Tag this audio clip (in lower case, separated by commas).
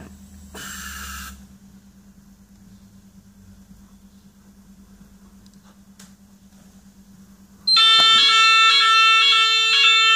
fire alarm, smoke alarm